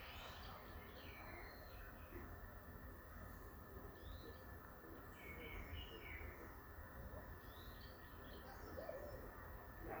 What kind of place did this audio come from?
park